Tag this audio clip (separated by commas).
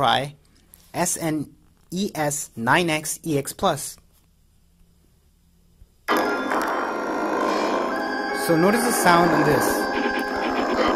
Music, inside a small room, Speech